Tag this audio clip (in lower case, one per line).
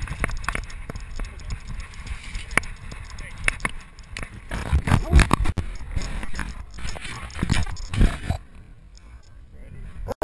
animal